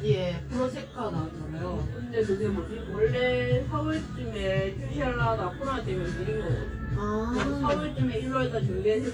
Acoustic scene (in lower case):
cafe